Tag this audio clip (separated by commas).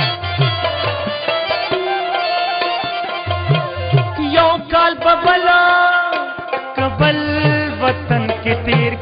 inside a large room or hall, Middle Eastern music, Music